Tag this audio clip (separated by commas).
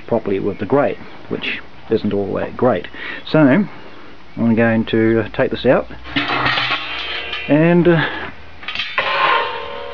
Speech